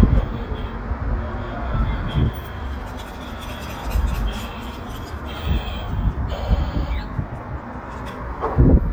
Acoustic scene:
residential area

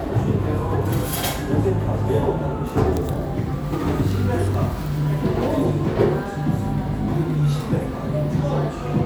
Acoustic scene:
cafe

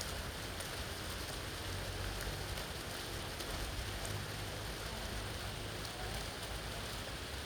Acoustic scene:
park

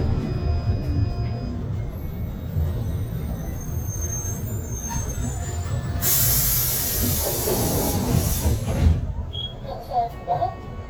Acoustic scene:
bus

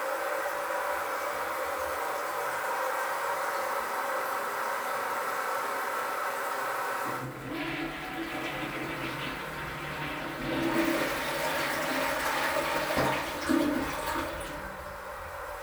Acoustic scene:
restroom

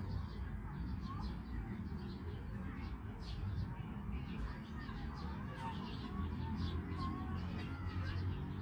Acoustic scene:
park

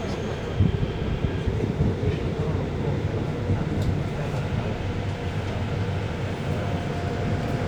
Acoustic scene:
subway train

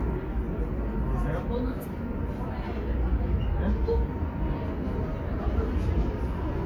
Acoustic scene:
subway station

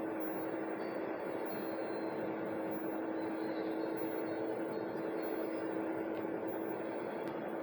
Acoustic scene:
bus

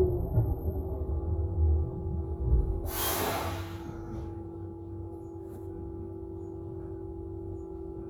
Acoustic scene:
bus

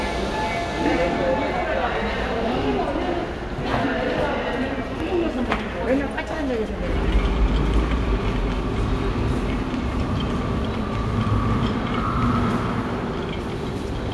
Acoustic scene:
subway station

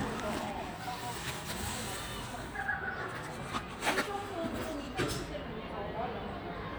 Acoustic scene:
residential area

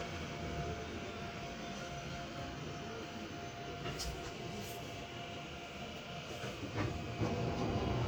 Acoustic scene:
subway train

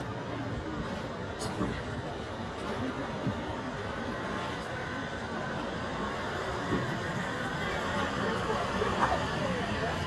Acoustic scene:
street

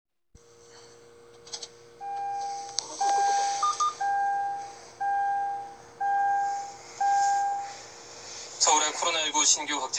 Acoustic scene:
car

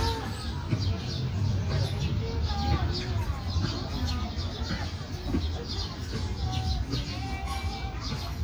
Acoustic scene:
park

